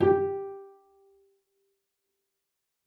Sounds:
Bowed string instrument, Musical instrument, Music

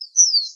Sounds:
Wild animals, bird call, Bird, Animal

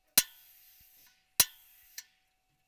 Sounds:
Mechanisms

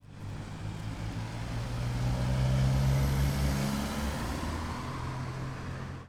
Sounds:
Vehicle, Motorcycle, Motor vehicle (road)

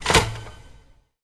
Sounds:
Telephone, Alarm

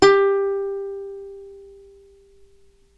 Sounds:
Plucked string instrument, Musical instrument, Music

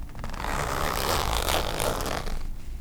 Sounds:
Zipper (clothing), Domestic sounds

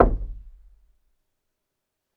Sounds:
home sounds, Door, Wood, Knock

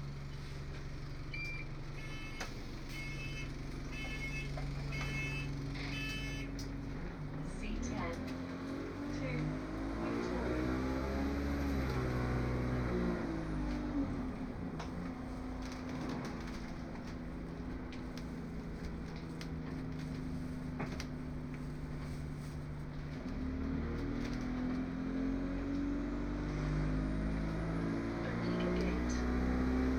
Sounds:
Bus, Vehicle, Motor vehicle (road)

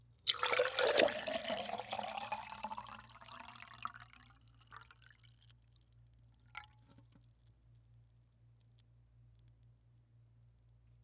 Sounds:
Liquid

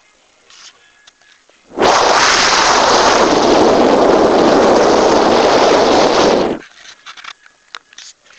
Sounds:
Wind

